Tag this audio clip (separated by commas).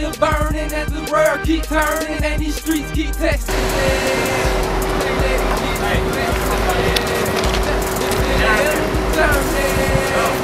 Music